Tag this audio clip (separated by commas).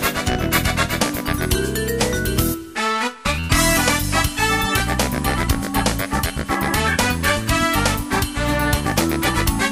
Music